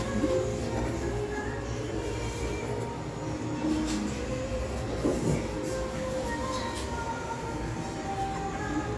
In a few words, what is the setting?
restaurant